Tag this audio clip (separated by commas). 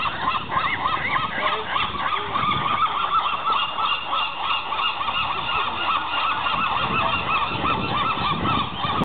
Speech